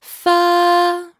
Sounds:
female singing, human voice, singing

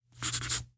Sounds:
writing, home sounds

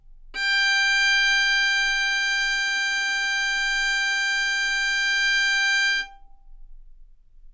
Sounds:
musical instrument, music, bowed string instrument

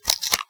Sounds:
domestic sounds, duct tape

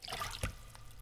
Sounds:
splash, liquid

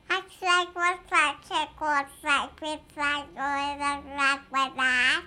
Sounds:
speech, human voice

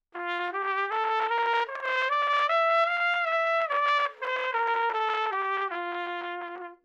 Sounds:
brass instrument, trumpet, musical instrument, music

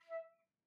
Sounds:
wind instrument, music, musical instrument

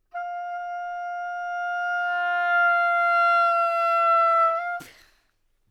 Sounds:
woodwind instrument, music, musical instrument

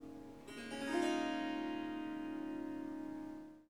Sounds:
music, harp, musical instrument

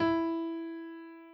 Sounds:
music, musical instrument, piano, keyboard (musical)

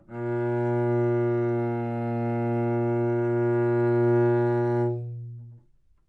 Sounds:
music, bowed string instrument, musical instrument

